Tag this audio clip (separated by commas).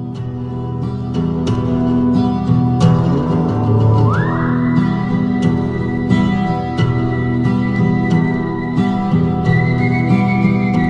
Country, Music